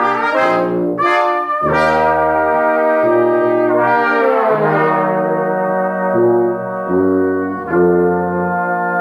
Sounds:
music

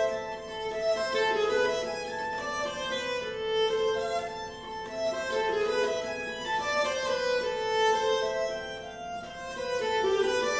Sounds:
music
musical instrument
violin

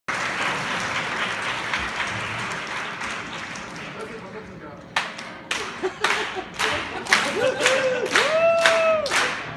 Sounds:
speech

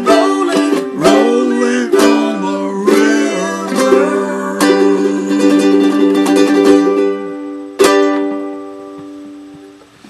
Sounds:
music
musical instrument
plucked string instrument
guitar
ukulele
singing

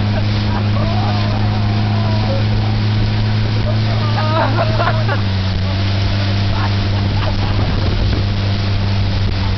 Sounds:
speech
boat
vehicle

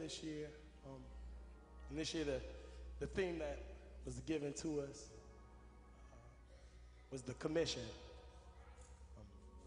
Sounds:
speech

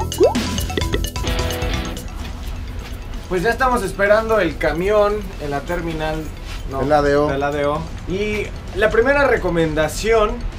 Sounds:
speech
music

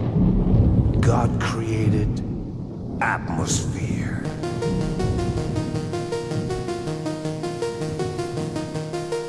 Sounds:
music
speech

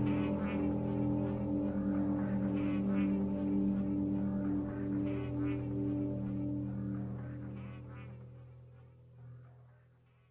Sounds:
music

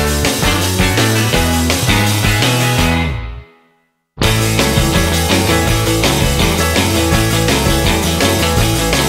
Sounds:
music
happy music
soundtrack music
progressive rock
theme music
new-age music
exciting music
punk rock

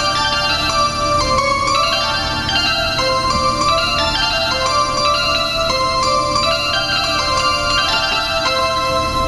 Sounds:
harpsichord
music

